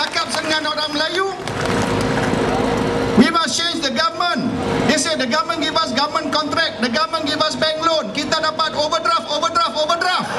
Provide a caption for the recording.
A crowd briefly claps as a man speaks over a humming engine